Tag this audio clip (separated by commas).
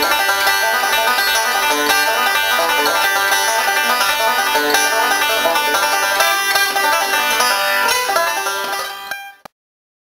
playing banjo, Bluegrass, Banjo, Country, Plucked string instrument, Music, Musical instrument